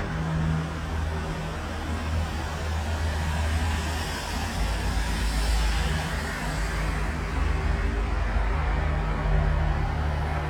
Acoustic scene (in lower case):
street